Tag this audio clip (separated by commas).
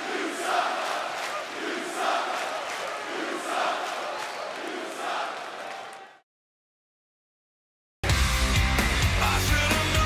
people booing